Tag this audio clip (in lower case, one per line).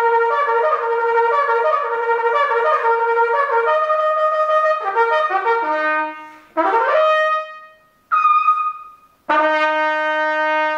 playing cornet